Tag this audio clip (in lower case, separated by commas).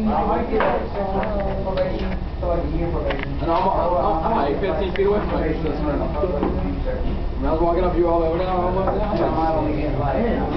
speech